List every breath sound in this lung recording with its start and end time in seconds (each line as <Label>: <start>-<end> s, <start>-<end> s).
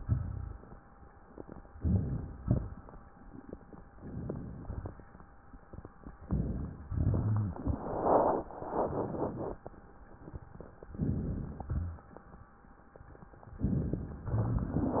Inhalation: 1.78-2.41 s, 3.95-4.57 s, 6.26-6.81 s, 10.99-11.65 s, 13.59-14.27 s
Exhalation: 2.41-2.96 s, 4.61-5.24 s, 6.87-7.42 s, 11.71-12.12 s
Rhonchi: 1.78-2.34 s, 6.26-6.81 s, 7.17-7.72 s, 10.99-11.65 s, 11.71-12.12 s, 13.59-14.27 s